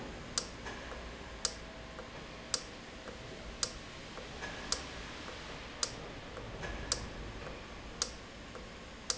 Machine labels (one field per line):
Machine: valve